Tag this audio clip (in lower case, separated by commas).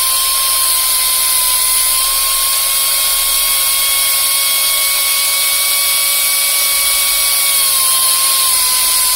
lathe spinning